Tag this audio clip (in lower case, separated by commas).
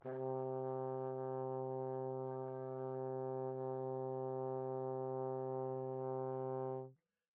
musical instrument, brass instrument, music